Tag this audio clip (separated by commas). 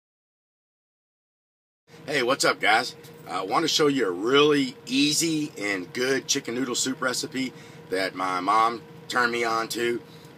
Speech